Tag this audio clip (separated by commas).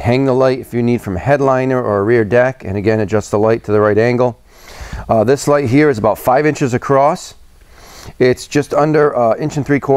Speech